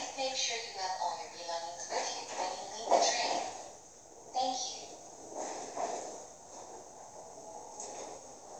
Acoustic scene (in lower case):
subway train